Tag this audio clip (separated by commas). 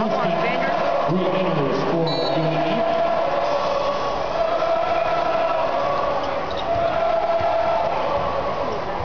Speech